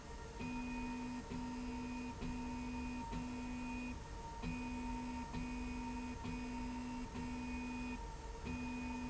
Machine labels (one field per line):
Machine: slide rail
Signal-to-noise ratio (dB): 6 dB